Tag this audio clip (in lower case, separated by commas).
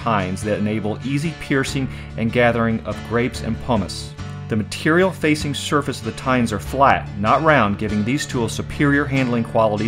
music, speech